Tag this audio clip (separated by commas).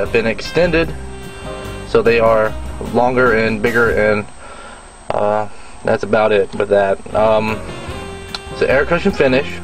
Speech, Music